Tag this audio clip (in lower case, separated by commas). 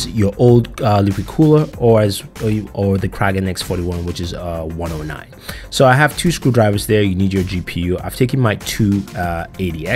speech, music